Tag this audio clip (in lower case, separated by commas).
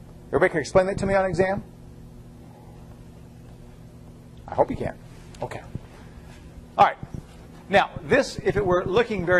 speech